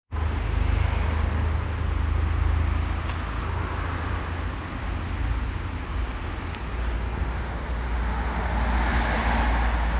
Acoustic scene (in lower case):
street